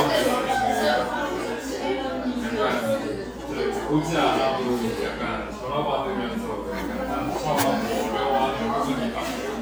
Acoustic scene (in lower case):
cafe